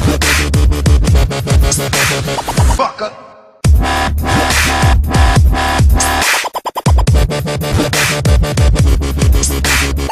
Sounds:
Dubstep, Music

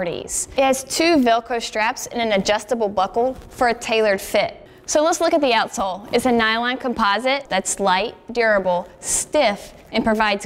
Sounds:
Speech

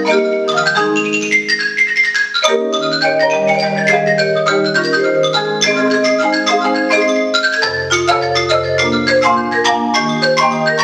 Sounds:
playing marimba

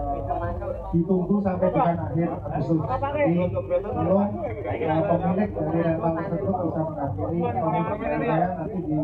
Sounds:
Speech

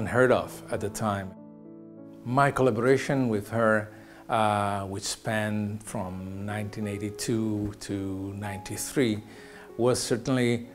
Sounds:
Speech, Music

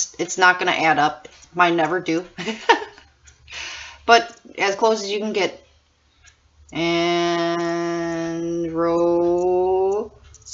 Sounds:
Speech, inside a small room

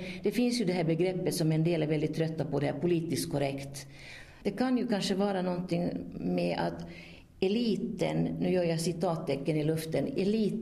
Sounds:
Speech

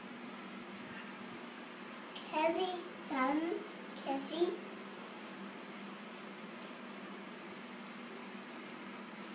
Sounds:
Speech

